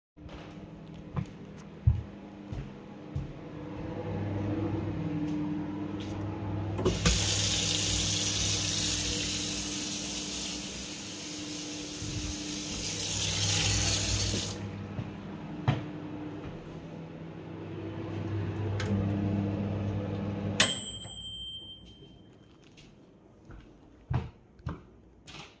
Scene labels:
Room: kitchen; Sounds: microwave, footsteps, running water

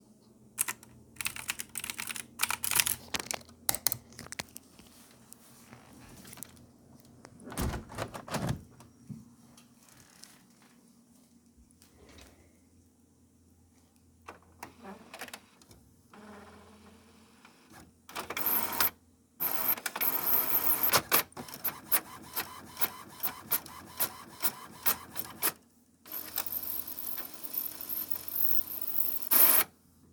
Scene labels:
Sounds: keyboard typing, window

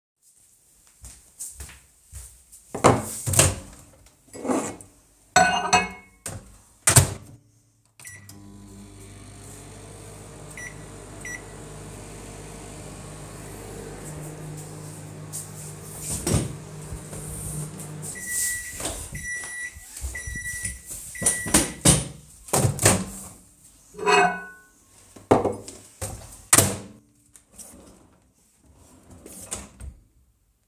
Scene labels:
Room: kitchen; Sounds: footsteps, cutlery and dishes, microwave, wardrobe or drawer (more than once)

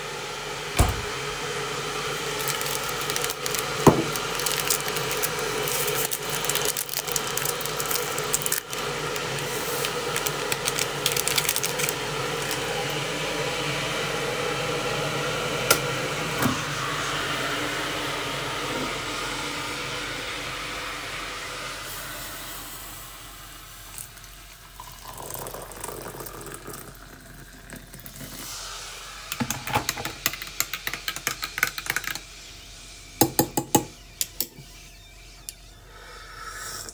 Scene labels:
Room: kitchen; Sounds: wardrobe or drawer, cutlery and dishes, running water

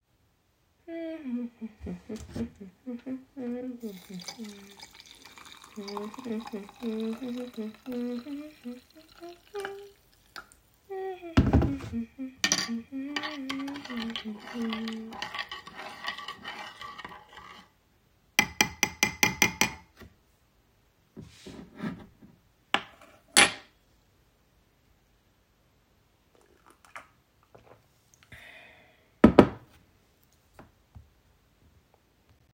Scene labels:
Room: kitchen; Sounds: running water, cutlery and dishes

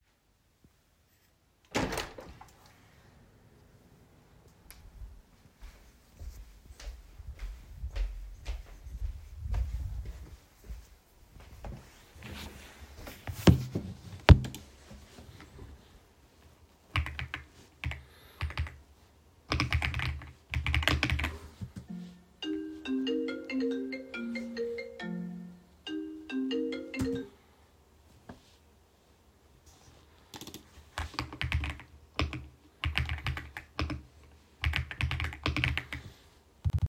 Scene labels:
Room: bedroom; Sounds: door, footsteps, keyboard typing, phone ringing

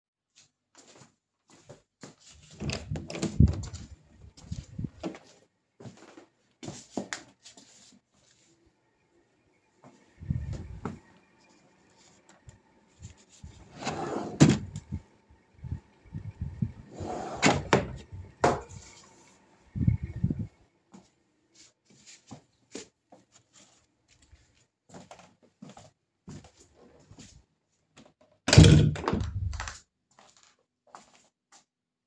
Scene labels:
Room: living room, bedroom; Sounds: footsteps, door (more than once), wardrobe or drawer (more than once)

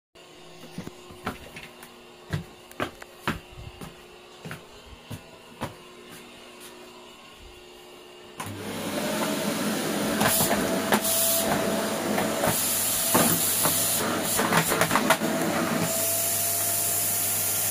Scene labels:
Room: kitchen; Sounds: footsteps, vacuum cleaner

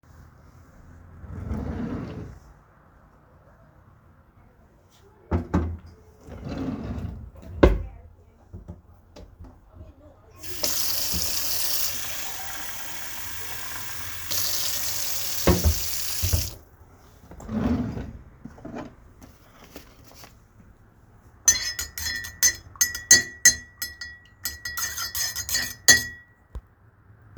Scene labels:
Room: kitchen; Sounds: wardrobe or drawer (more than once), running water, cutlery and dishes

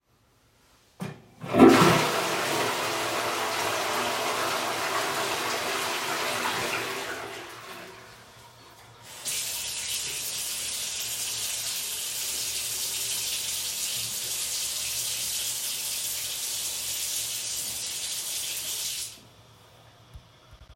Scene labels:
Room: bathroom; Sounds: toilet flushing, running water

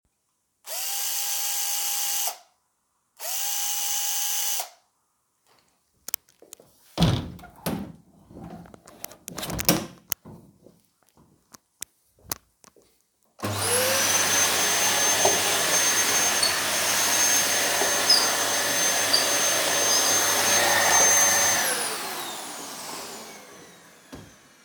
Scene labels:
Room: bedroom; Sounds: door, vacuum cleaner

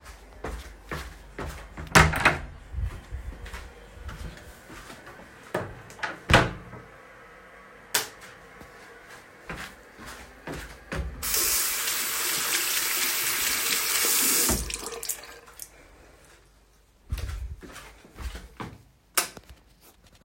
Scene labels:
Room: lavatory; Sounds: footsteps, door (more than once), light switch, running water

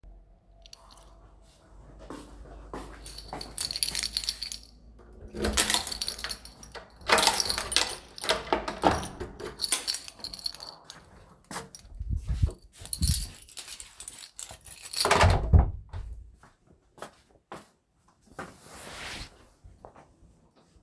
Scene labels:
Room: hallway, living room; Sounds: keys, footsteps, door (more than once)

